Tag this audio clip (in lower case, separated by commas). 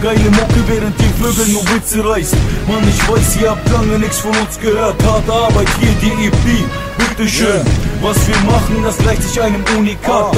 music